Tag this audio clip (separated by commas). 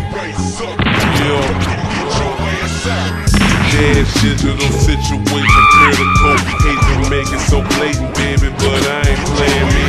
Music